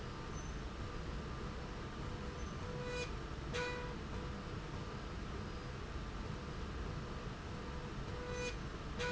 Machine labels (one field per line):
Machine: slide rail